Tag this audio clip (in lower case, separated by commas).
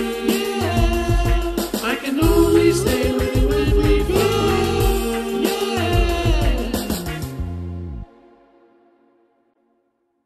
music